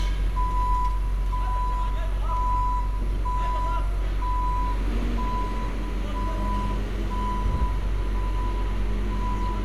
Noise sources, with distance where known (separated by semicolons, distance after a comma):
reverse beeper, near; person or small group shouting, near